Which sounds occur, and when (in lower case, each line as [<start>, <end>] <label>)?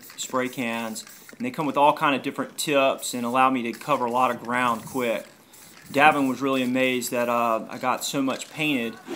[0.00, 9.15] wind
[0.04, 0.15] generic impact sounds
[0.18, 1.00] male speech
[0.26, 0.32] generic impact sounds
[0.38, 1.27] spray
[0.94, 1.34] generic impact sounds
[1.36, 5.34] male speech
[1.52, 1.59] generic impact sounds
[3.10, 3.41] spray
[3.72, 3.81] generic impact sounds
[3.72, 4.35] spray
[4.37, 4.46] generic impact sounds
[4.59, 5.28] spray
[5.50, 5.78] spray
[5.83, 6.13] wind noise (microphone)
[5.84, 9.02] male speech
[5.86, 6.41] spray
[7.12, 7.62] spray
[8.24, 8.41] generic impact sounds
[8.90, 8.99] generic impact sounds
[9.03, 9.15] sound effect